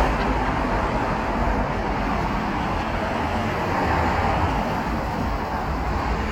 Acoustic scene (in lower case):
street